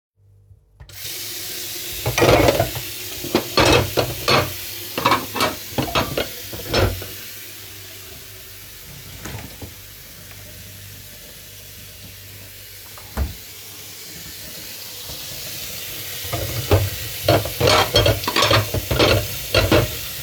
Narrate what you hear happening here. I turned on the water faucet, moved a couple of dishes and then went and opened the fridge door. After that, I went back to the dishes and turned off the water faucet.